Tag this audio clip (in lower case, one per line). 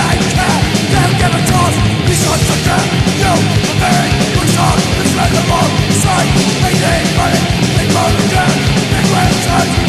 music